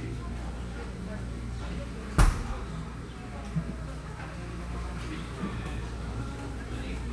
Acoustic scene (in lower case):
cafe